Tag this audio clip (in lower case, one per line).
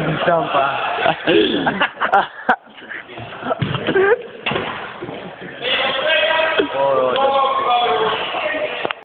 speech